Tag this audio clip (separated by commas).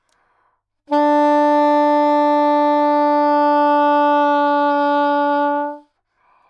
Music, woodwind instrument, Musical instrument